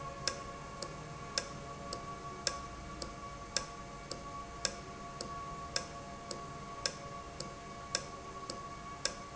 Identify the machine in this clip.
valve